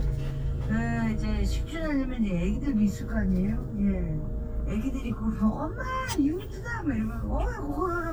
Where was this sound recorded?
in a car